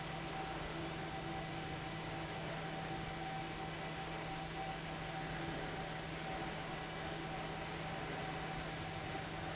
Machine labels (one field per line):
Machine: fan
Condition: abnormal